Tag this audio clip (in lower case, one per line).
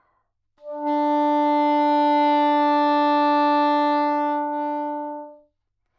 music
wind instrument
musical instrument